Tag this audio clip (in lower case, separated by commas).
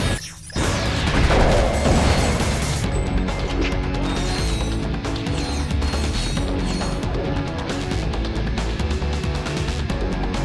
music